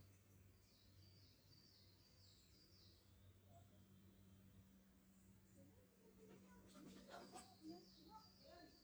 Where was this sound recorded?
in a park